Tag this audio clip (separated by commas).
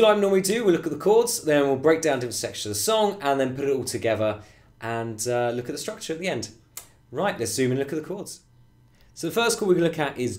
Speech